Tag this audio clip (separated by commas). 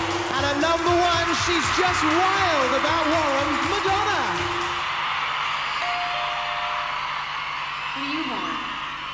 Speech, Music